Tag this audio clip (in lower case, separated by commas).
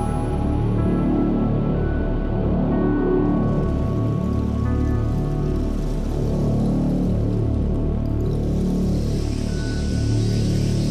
ambient music, music